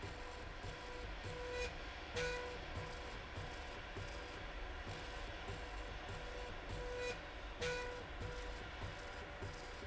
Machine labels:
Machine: slide rail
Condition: normal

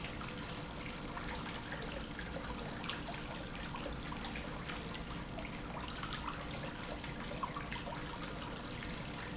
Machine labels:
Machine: pump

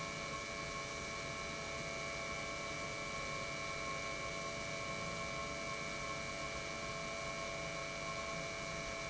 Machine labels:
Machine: pump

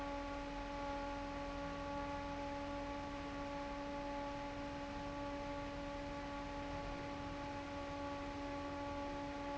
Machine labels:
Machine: fan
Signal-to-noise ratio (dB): 6 dB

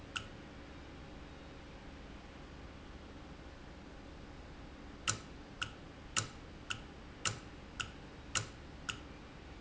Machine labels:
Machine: valve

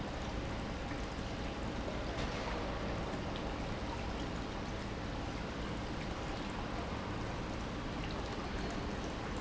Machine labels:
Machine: pump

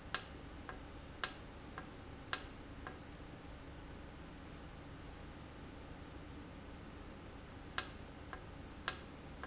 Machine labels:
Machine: valve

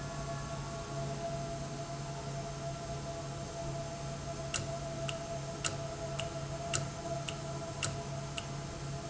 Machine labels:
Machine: valve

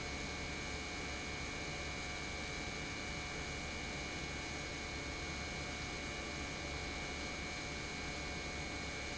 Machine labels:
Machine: pump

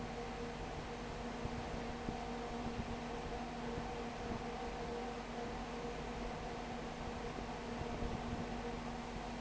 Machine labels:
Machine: fan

